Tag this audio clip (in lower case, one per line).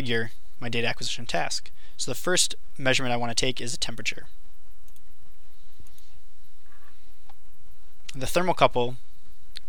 speech